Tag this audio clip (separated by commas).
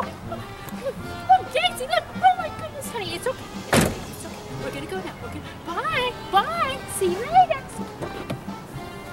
Speech, Music